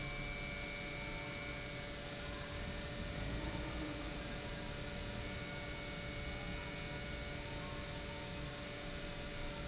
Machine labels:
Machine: pump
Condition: normal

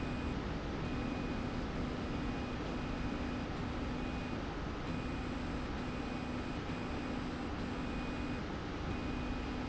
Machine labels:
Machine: slide rail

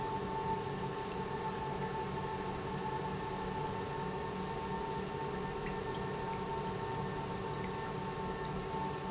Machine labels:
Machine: pump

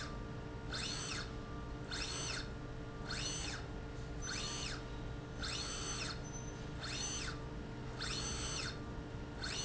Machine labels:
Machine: slide rail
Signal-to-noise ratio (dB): 0 dB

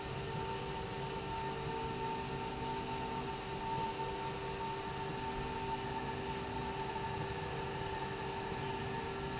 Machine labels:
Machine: slide rail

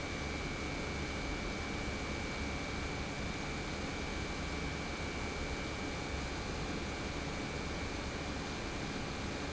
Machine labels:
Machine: pump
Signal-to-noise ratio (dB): -6 dB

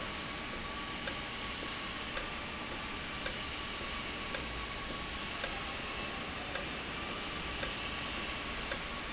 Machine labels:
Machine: valve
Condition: normal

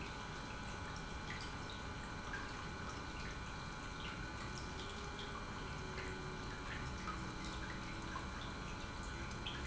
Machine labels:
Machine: pump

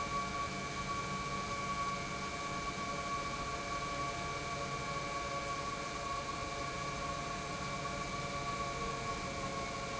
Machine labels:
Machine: pump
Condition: normal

